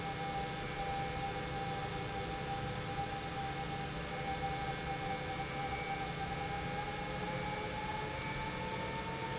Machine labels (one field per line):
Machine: pump